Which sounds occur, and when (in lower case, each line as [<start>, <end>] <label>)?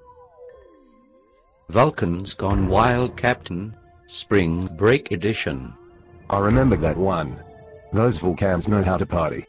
[0.00, 9.45] mechanisms
[1.65, 3.74] male speech
[4.09, 5.74] male speech
[6.29, 7.43] male speech
[7.92, 9.45] male speech